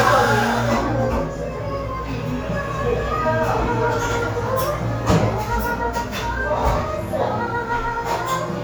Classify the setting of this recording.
cafe